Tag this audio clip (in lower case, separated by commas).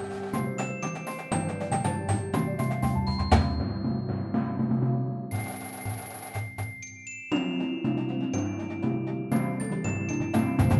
music, timpani